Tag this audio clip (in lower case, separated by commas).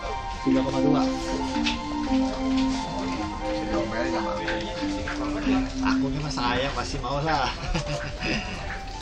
music, speech